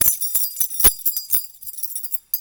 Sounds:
home sounds, Keys jangling

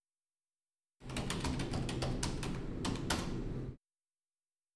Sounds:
Typing, Computer keyboard, Domestic sounds

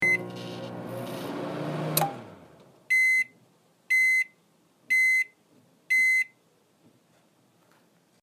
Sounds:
Microwave oven, home sounds

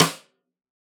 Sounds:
Snare drum, Music, Musical instrument, Drum, Percussion

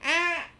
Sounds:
Human voice, Speech

